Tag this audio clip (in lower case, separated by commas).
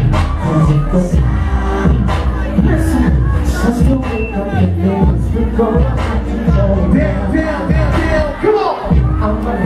music